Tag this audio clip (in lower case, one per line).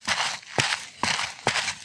footsteps